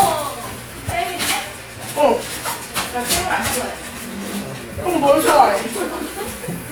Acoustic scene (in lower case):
crowded indoor space